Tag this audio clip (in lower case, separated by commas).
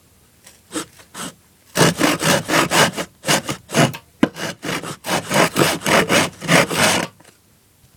sawing, tools